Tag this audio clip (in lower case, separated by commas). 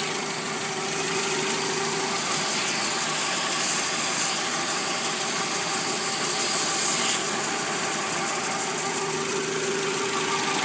engine